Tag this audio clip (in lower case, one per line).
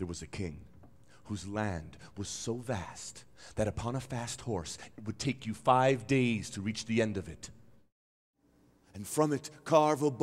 speech